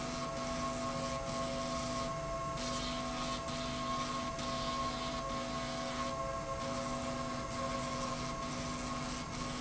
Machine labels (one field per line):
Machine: slide rail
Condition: abnormal